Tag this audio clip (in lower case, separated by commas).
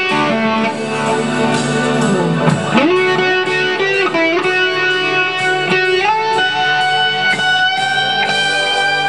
rock music, musical instrument, plucked string instrument, guitar, music, progressive rock